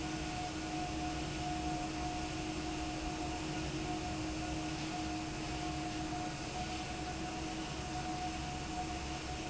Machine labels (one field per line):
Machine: fan